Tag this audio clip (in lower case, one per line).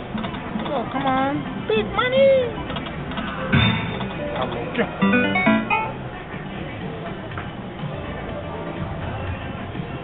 speech
music